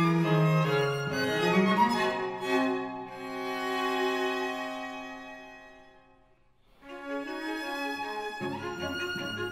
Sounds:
piano, keyboard (musical)

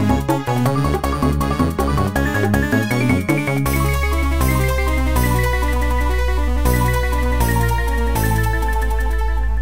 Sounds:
music

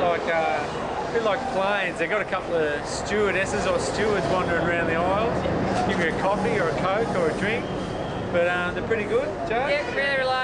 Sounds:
speech

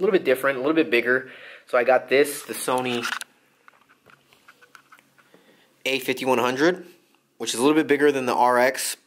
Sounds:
speech, inside a small room

